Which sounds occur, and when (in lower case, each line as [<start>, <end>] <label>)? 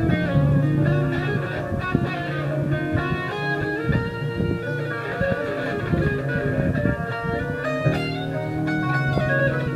[0.01, 9.75] music